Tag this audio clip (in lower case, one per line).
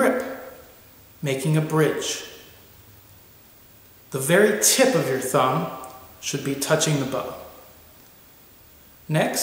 speech